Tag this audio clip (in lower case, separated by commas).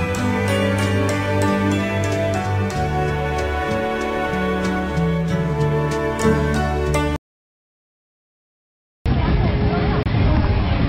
music, tender music, speech